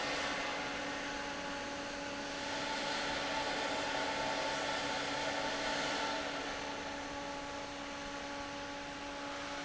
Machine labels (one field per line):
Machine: fan